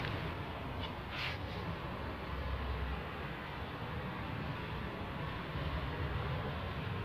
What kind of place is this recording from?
residential area